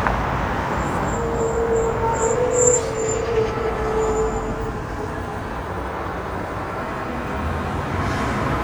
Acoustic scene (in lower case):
street